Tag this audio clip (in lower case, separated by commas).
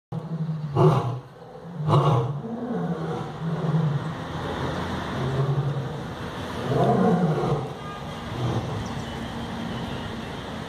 lions roaring